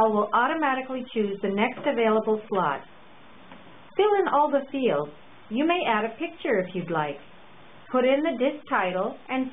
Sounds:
Speech

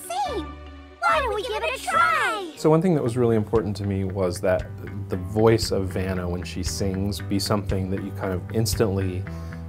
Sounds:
Speech, Music

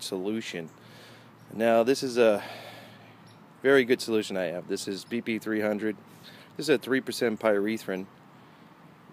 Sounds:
Speech

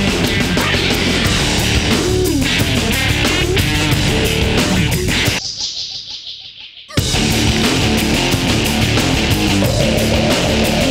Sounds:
Music

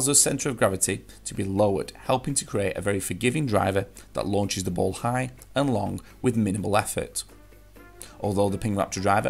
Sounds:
Speech, Music

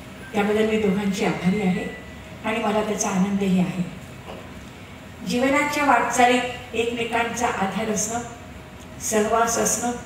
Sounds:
Speech, woman speaking, monologue

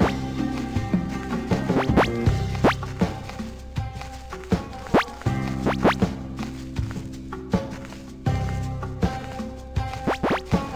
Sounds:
Music

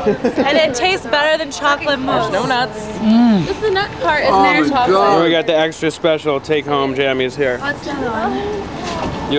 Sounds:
Speech

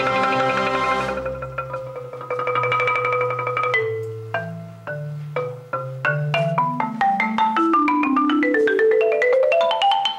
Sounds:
Music, playing marimba, xylophone

